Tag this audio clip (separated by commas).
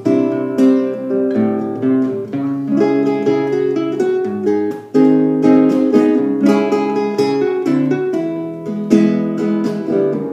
Plucked string instrument, Strum, Musical instrument, Music, Acoustic guitar, Guitar